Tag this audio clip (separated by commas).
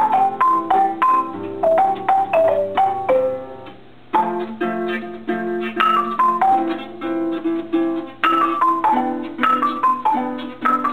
Music